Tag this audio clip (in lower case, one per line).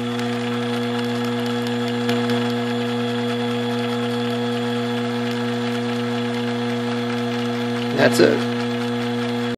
mechanisms